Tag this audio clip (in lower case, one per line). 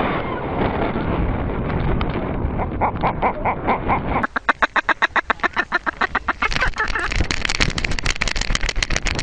animal
speech